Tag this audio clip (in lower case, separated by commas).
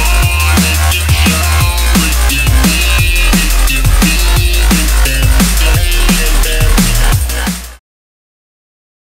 dubstep, music